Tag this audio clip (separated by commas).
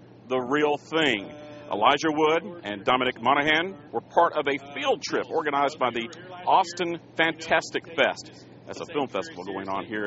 Speech